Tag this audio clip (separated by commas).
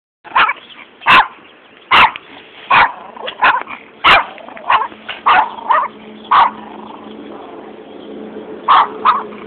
Animal, Bark, dog barking